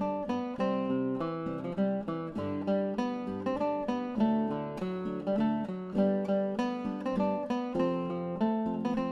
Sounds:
Music

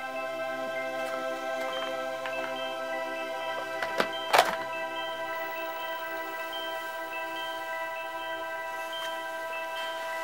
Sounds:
Mallet percussion, xylophone, Glockenspiel

